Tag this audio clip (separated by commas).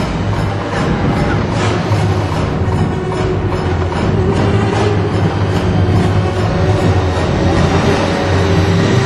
Music